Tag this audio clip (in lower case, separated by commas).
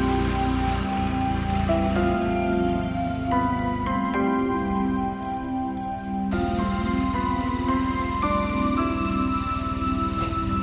music